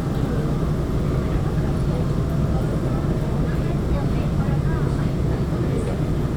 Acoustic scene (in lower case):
subway train